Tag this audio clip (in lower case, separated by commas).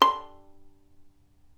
musical instrument, bowed string instrument, music